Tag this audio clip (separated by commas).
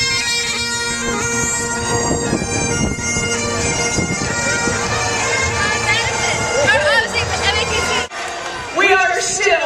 Bagpipes, Crowd, Wind instrument